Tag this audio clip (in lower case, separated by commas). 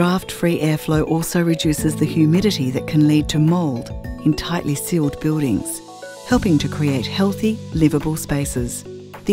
music, speech